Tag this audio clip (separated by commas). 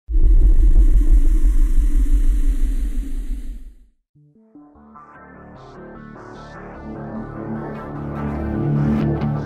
Music